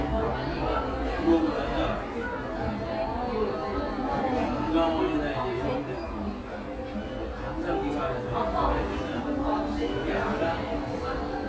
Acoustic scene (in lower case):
cafe